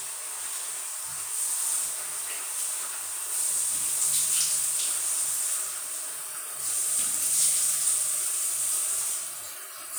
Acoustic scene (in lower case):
restroom